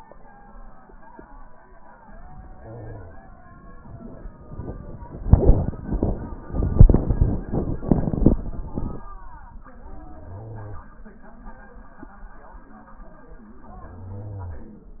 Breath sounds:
Wheeze: 2.62-3.17 s

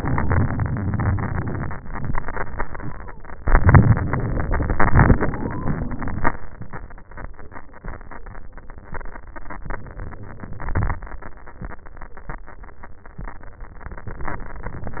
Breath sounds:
Inhalation: 0.00-1.66 s, 3.43-5.20 s, 9.74-10.81 s, 13.93-15.00 s
Exhalation: 1.78-3.45 s, 5.23-6.78 s, 10.79-11.48 s
Wheeze: 1.84-3.39 s, 5.23-6.78 s
Crackles: 3.43-5.20 s, 10.79-11.48 s

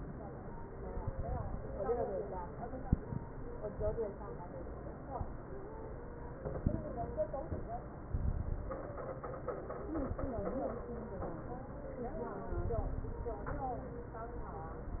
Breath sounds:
Inhalation: 8.11-8.93 s, 12.45-13.43 s
Crackles: 8.11-8.93 s, 12.45-13.43 s

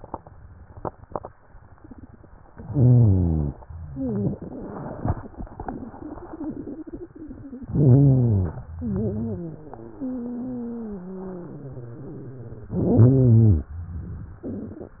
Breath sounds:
Inhalation: 2.52-3.61 s, 7.72-8.63 s
Exhalation: 3.91-7.74 s, 8.79-12.62 s
Wheeze: 2.66-3.51 s, 3.91-7.74 s, 7.78-8.63 s, 12.83-13.69 s

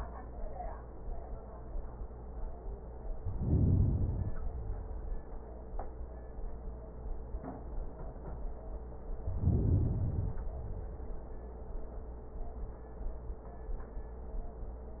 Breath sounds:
Inhalation: 3.12-4.53 s, 9.19-10.40 s
Exhalation: 4.51-5.99 s, 10.39-11.60 s

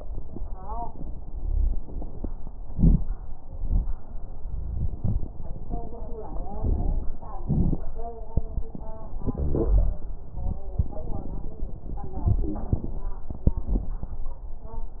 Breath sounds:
Inhalation: 6.56-7.12 s
Exhalation: 7.43-7.87 s
Crackles: 6.56-7.12 s, 7.43-7.87 s

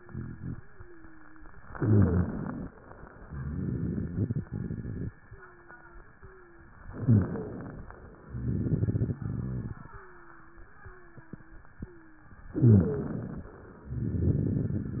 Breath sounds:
Inhalation: 1.64-2.70 s, 6.90-7.88 s, 12.52-13.50 s
Exhalation: 3.26-5.12 s, 8.28-9.90 s, 13.86-15.00 s
Wheeze: 0.00-1.52 s, 1.64-2.36 s, 5.22-6.74 s, 6.90-7.56 s, 9.96-11.64 s, 11.80-12.38 s, 12.52-13.28 s

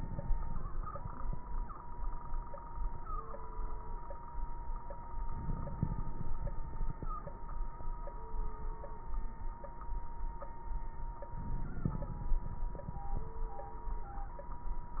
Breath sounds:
Inhalation: 5.28-7.37 s, 11.29-12.42 s
Exhalation: 12.40-13.53 s
Crackles: 5.28-7.37 s, 11.29-12.42 s, 12.43-13.53 s

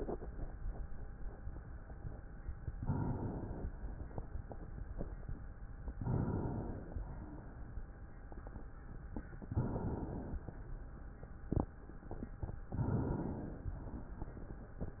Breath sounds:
Inhalation: 2.77-3.70 s, 5.96-6.89 s, 9.41-10.44 s, 12.71-13.74 s
Exhalation: 6.90-9.19 s, 13.75-14.78 s

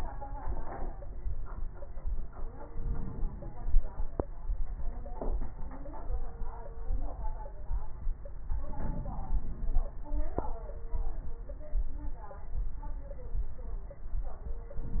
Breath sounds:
Inhalation: 2.65-4.13 s, 8.66-9.94 s

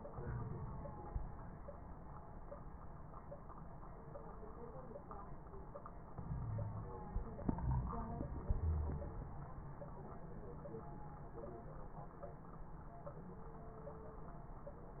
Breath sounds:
Inhalation: 0.11-0.78 s, 6.24-6.91 s
Wheeze: 6.24-6.91 s, 8.61-9.18 s
Crackles: 0.11-0.78 s

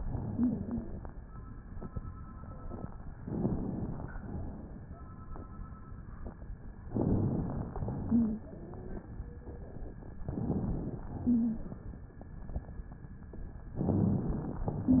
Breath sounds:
Inhalation: 3.18-4.14 s, 6.90-7.76 s, 10.24-11.10 s, 13.78-14.64 s
Exhalation: 7.76-9.00 s, 11.14-12.06 s, 14.66-15.00 s
Wheeze: 0.34-0.96 s, 8.06-8.42 s, 8.50-9.02 s, 11.22-11.64 s

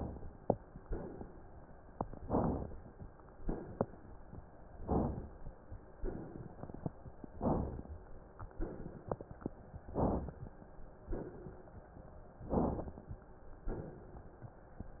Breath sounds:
Inhalation: 2.20-2.80 s, 4.80-5.33 s, 7.39-7.92 s, 9.92-10.46 s, 12.42-13.07 s
Exhalation: 0.85-1.32 s, 3.41-4.00 s, 5.97-6.95 s, 8.51-9.61 s, 11.07-11.76 s, 13.69-14.38 s
Crackles: 5.97-6.95 s, 8.51-9.61 s

